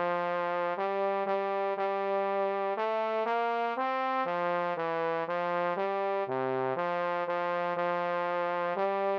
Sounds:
playing bassoon

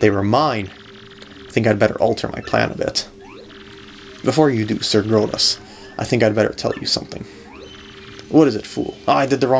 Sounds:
Speech

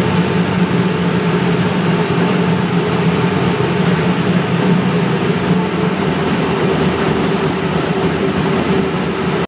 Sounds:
Idling, Vehicle, Engine

